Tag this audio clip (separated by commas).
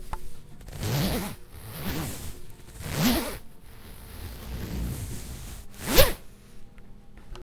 home sounds, Zipper (clothing)